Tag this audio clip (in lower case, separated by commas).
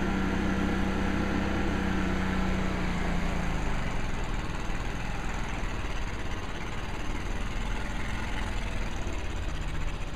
vibration